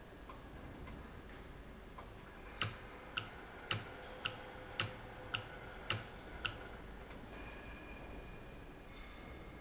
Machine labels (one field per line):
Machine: valve